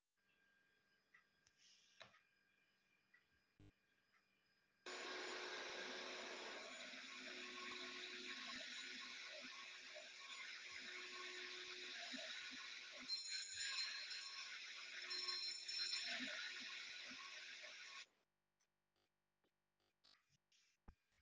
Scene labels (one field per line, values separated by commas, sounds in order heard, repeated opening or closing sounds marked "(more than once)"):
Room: living room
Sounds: vacuum cleaner, bell ringing